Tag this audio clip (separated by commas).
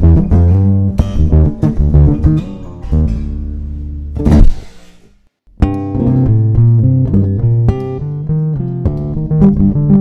Music, Bowed string instrument, playing bass guitar, Musical instrument, Bass guitar, Plucked string instrument, Guitar